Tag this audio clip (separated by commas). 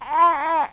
Human voice, Speech